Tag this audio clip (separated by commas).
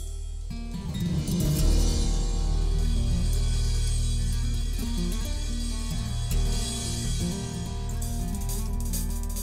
Percussion, Rimshot, Snare drum, Drum kit, Drum